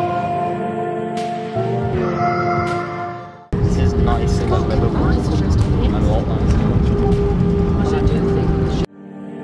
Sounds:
music
speech

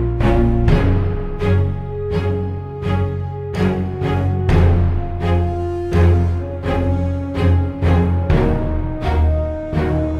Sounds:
background music
music

